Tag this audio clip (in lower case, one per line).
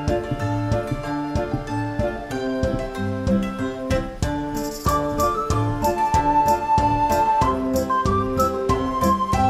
music